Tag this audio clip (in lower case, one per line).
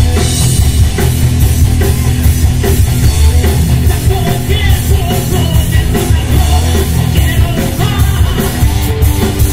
rock and roll
music